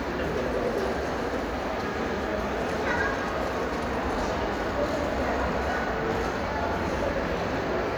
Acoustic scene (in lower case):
crowded indoor space